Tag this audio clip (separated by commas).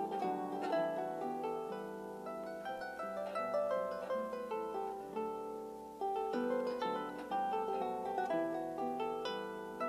Harp, playing harp, Music